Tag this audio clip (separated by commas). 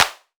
Clapping, Hands